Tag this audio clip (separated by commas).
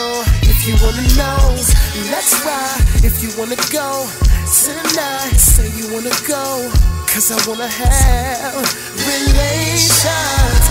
Music, Rapping, Hip hop music